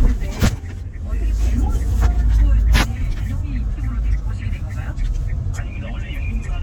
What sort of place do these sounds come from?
car